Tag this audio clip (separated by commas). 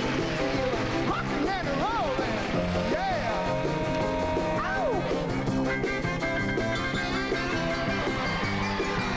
Music